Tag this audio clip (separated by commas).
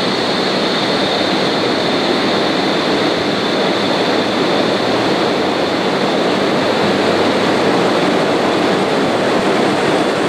Rustling leaves